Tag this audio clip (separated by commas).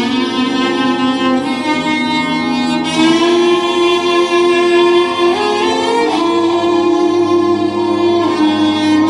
Music, Musical instrument, Violin